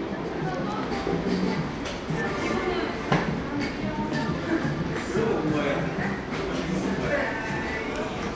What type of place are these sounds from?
cafe